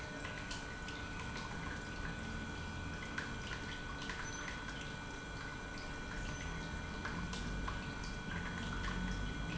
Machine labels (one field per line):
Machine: pump